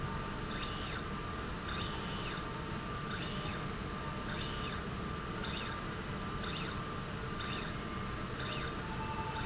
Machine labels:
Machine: slide rail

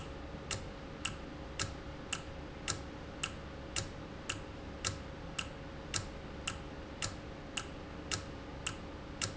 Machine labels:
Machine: valve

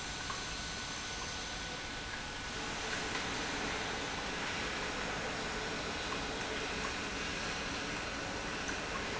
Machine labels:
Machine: pump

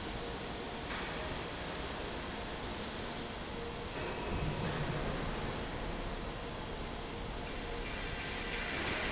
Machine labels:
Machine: fan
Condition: normal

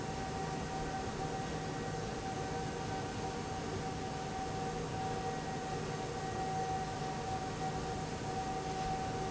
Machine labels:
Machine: fan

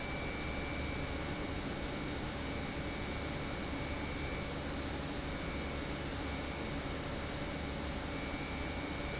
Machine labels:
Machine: pump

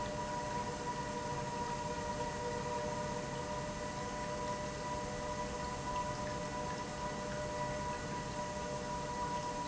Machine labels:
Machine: pump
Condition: normal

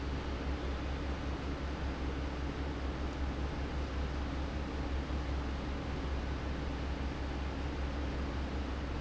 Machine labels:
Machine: fan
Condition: abnormal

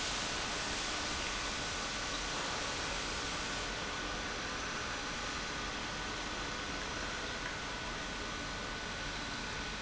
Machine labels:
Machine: pump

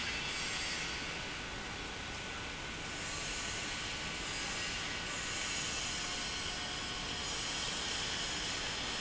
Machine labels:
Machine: pump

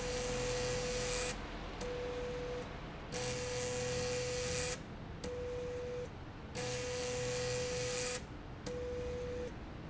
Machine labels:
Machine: slide rail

